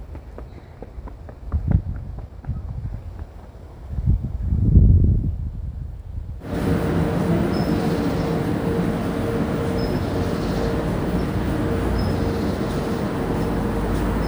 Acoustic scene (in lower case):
residential area